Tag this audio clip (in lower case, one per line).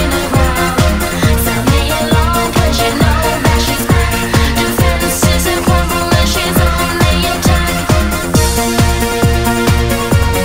music